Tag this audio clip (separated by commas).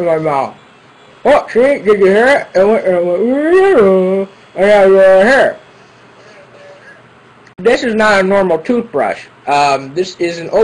Speech